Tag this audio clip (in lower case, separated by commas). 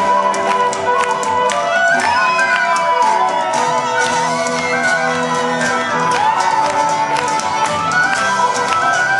musical instrument, fiddle, music